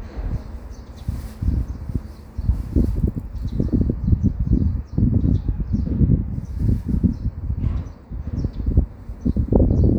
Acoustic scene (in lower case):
residential area